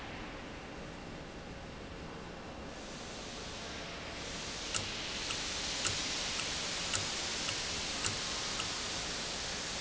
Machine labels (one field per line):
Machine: valve